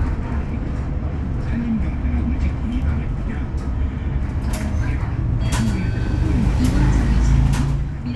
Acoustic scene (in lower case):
bus